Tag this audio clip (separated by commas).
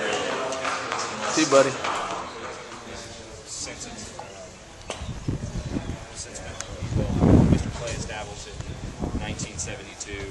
Speech, Animal, Horse, Clip-clop